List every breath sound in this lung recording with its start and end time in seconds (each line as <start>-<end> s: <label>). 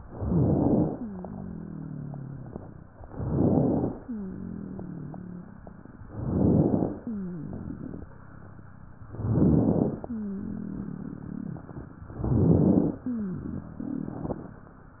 0.06-1.04 s: inhalation
0.06-1.04 s: crackles
1.06-3.01 s: rhonchi
3.05-4.04 s: inhalation
3.05-4.04 s: crackles
4.04-5.99 s: rhonchi
6.07-7.06 s: inhalation
6.07-7.06 s: crackles
7.08-9.02 s: rhonchi
9.12-10.11 s: inhalation
9.12-10.11 s: crackles
10.11-12.06 s: rhonchi
12.16-13.05 s: inhalation
12.16-13.05 s: crackles
13.05-15.00 s: rhonchi